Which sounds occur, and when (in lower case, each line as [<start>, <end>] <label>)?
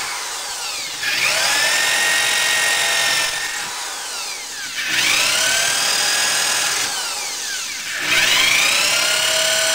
[0.00, 9.74] drill